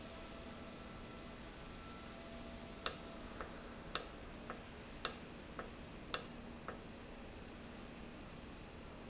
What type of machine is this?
valve